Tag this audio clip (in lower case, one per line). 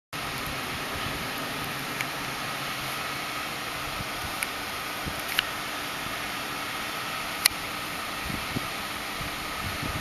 outside, urban or man-made